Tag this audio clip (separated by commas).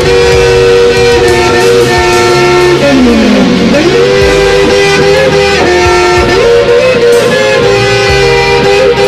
Strum, Bass guitar, Guitar, Musical instrument, Plucked string instrument, Electric guitar, Music